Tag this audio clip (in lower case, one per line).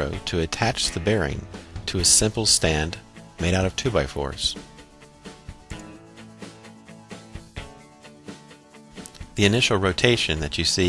music
speech